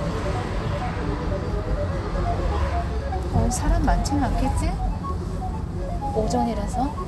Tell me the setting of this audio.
car